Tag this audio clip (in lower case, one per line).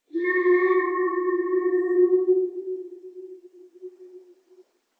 alarm